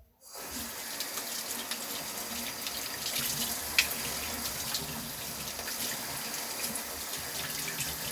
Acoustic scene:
restroom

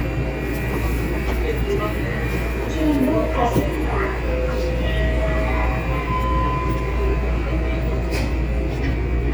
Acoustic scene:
subway train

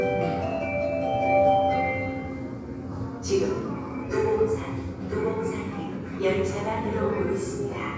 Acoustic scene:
subway station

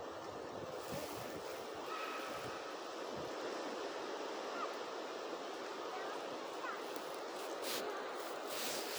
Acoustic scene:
residential area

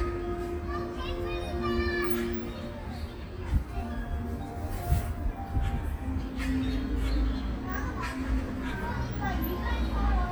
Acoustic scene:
park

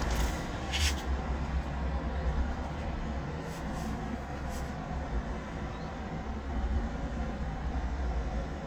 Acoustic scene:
residential area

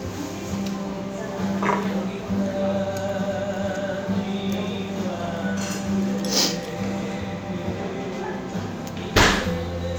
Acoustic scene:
restaurant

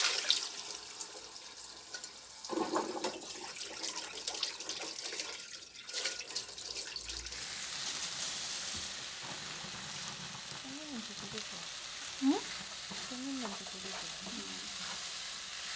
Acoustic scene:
kitchen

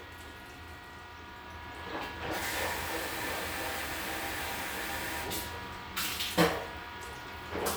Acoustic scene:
restroom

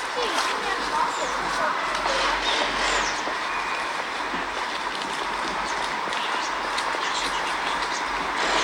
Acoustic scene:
park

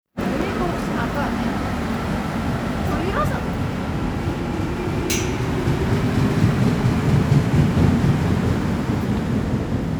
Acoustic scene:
subway station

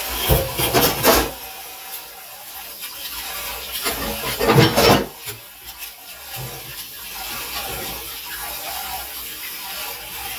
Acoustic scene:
kitchen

